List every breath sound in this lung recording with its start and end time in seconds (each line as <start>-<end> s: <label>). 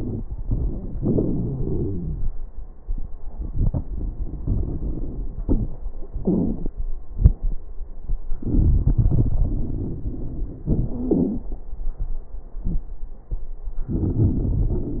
0.00-0.94 s: inhalation
0.00-0.94 s: crackles
0.99-2.28 s: exhalation
0.99-2.28 s: crackles
3.35-5.40 s: inhalation
3.35-5.40 s: crackles
5.47-5.81 s: exhalation
5.47-5.81 s: crackles
6.20-6.60 s: wheeze
6.20-6.74 s: inhalation
7.16-7.58 s: exhalation
7.16-7.58 s: crackles
8.42-9.38 s: inhalation
8.42-9.38 s: crackles
9.42-10.66 s: exhalation
9.42-10.66 s: crackles
10.96-11.46 s: wheeze
13.92-15.00 s: inhalation
13.92-15.00 s: crackles